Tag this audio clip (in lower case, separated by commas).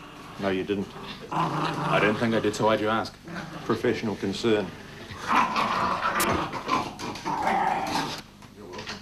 speech, domestic animals, animal